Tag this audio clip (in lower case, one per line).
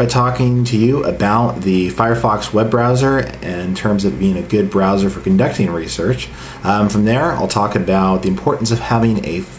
speech